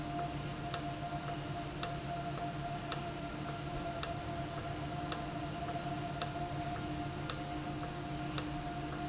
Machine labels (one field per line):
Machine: valve